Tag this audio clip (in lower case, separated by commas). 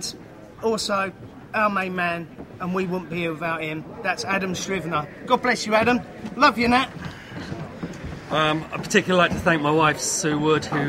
monologue, male speech, speech